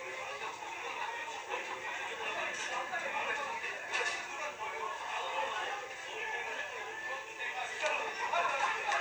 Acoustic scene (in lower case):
restaurant